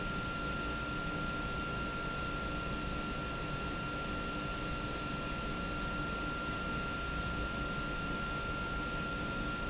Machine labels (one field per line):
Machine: pump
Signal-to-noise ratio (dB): -6 dB